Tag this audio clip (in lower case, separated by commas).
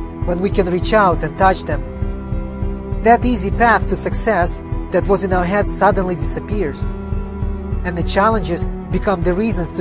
speech, music, male speech